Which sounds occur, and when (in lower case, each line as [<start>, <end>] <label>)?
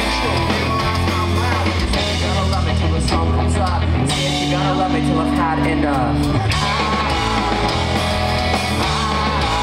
[0.00, 9.62] music
[0.62, 1.74] male singing
[1.91, 3.77] male singing
[4.49, 6.18] male singing
[6.46, 9.62] male singing